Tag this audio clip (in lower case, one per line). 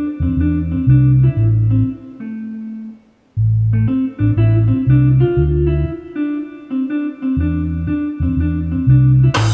music
piano
musical instrument
keyboard (musical)
inside a small room